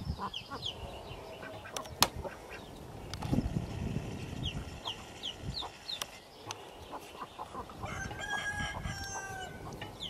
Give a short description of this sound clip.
A duck quacks as birds sing and a rooster crows